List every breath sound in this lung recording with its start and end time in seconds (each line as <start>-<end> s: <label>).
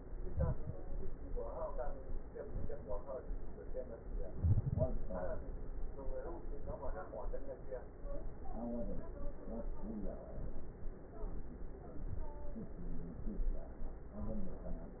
0.22-0.70 s: inhalation
2.43-3.11 s: inhalation